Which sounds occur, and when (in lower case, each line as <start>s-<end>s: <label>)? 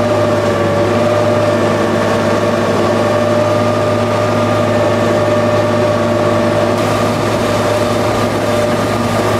0.0s-9.3s: mechanisms
6.8s-9.3s: liquid